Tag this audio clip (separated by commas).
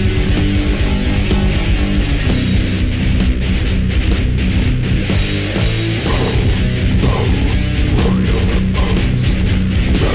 Music